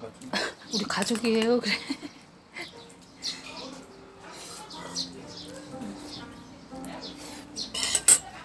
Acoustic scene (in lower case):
restaurant